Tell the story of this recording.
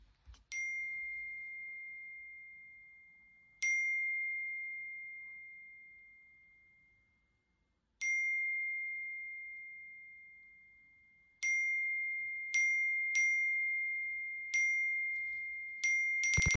Phone ringing. I waited for it to ring a bit before I answered